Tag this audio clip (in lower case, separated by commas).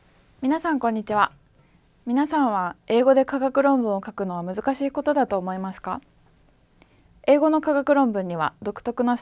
speech